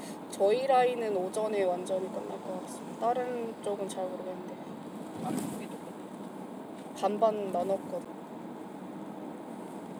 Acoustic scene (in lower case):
car